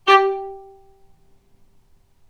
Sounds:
musical instrument, bowed string instrument, music

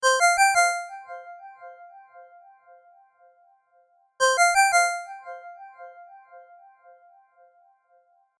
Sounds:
telephone, alarm, ringtone

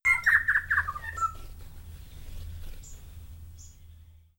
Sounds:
animal, bird, wild animals

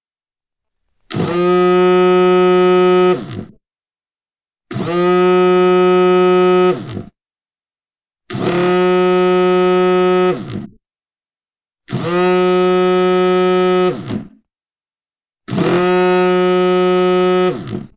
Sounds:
alarm, telephone

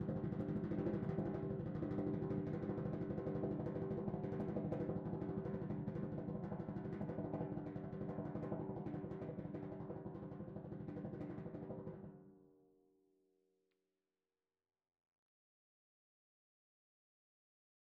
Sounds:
drum, musical instrument, percussion, music

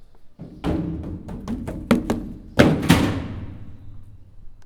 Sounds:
run

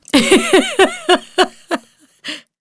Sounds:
human voice, laughter, giggle

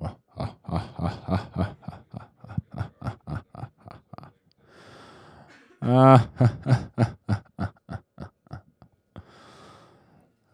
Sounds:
laughter, human voice

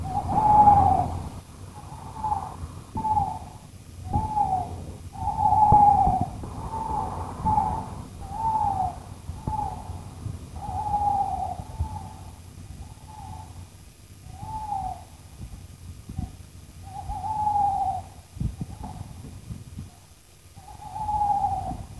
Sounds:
bird, wild animals, animal

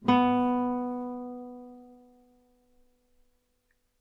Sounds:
guitar, musical instrument, plucked string instrument, music

